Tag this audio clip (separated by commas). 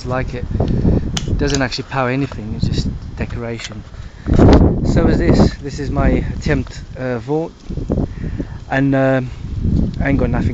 Speech